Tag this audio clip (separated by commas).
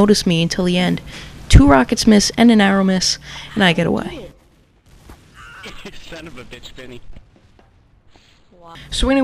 Speech